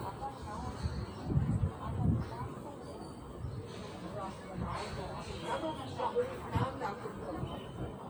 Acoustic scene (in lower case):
park